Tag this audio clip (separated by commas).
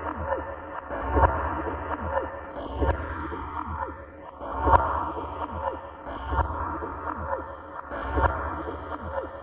Sound effect